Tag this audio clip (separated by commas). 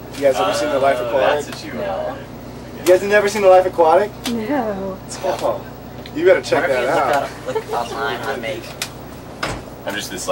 Speech